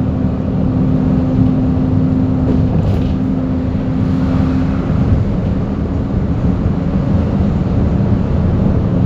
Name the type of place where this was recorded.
bus